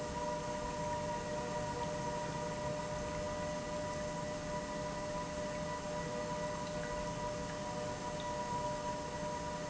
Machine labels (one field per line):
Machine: pump